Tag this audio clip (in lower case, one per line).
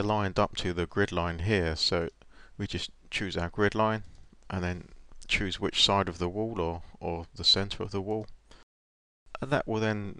speech